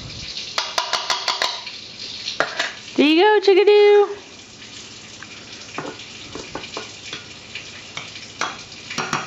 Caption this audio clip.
A sharp rapping is interrupted by a woman speaking